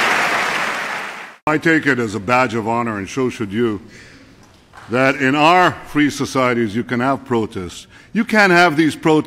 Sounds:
speech, male speech, monologue

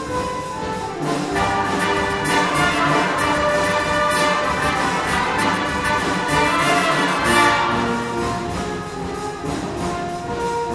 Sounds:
music

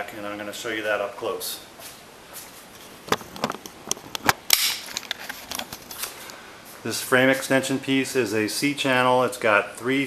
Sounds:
inside a large room or hall, speech

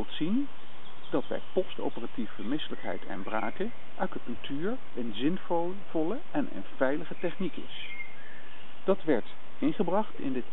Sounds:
speech

